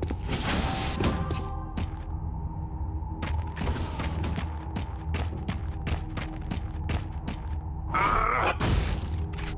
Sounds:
Sound effect, footsteps

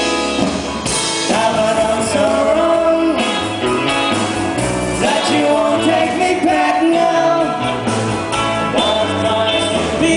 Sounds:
Music

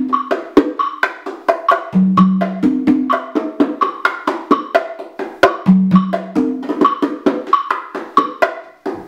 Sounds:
playing congas

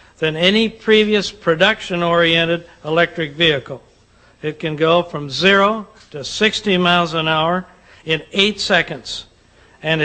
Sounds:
Speech

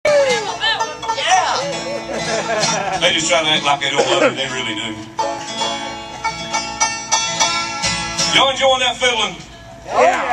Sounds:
Bluegrass, Banjo, Music, Speech

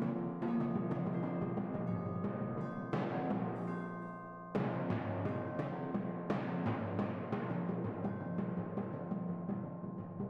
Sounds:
playing tympani

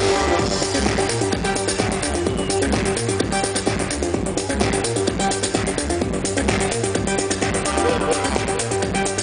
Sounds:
Music

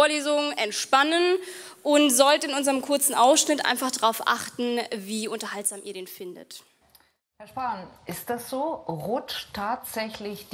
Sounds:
Speech

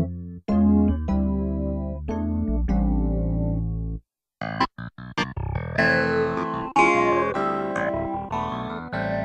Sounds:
Sound effect, Music

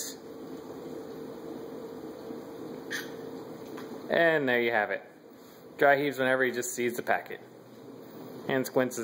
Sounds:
Speech, Cat, Domestic animals, Animal

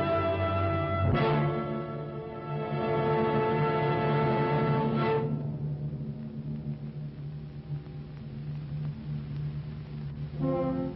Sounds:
Music

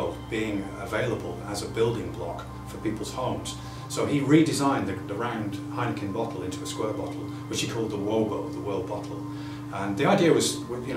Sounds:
Speech, Music

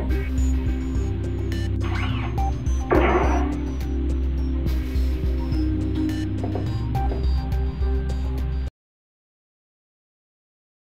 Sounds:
Music

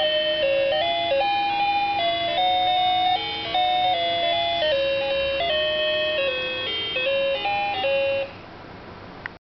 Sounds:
Tick-tock, Music

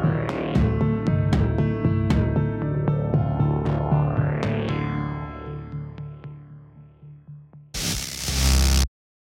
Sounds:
Soundtrack music, Music

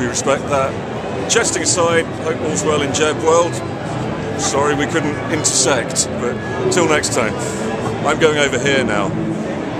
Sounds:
Speech

